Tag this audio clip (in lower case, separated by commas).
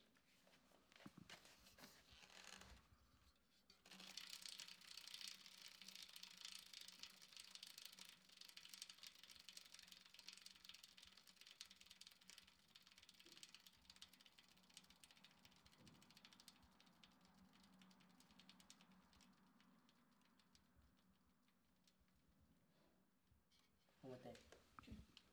vehicle, bicycle